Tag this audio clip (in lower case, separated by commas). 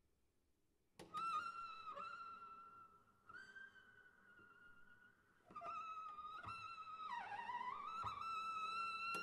bowed string instrument, music, musical instrument